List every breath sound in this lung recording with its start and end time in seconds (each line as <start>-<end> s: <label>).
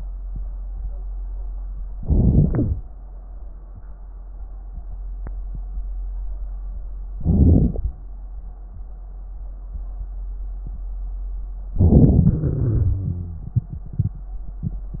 1.98-2.82 s: inhalation
1.98-2.82 s: crackles
7.12-7.96 s: inhalation
7.12-7.96 s: crackles
11.79-12.44 s: inhalation
12.46-13.50 s: exhalation
12.46-13.50 s: wheeze